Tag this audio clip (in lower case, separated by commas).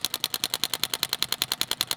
tools